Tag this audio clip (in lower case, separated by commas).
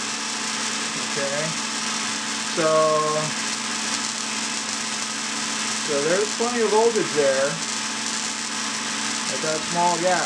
speech